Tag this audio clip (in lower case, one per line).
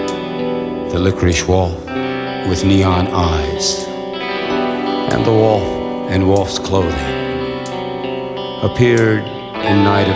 music
speech